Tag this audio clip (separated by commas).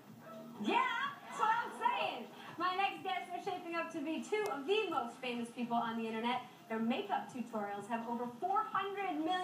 Speech